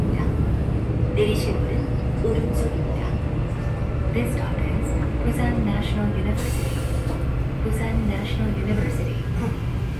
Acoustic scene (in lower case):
subway train